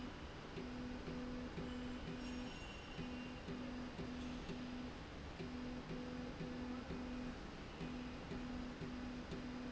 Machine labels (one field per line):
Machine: slide rail